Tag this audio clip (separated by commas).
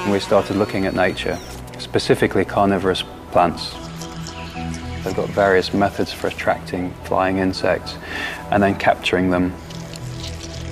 Speech, Music